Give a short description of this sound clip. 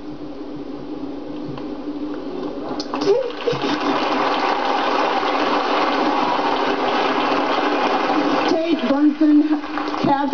The sound of an audience clapping and a female voice gasping then speaking